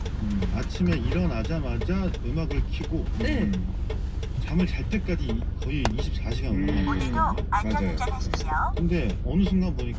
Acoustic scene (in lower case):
car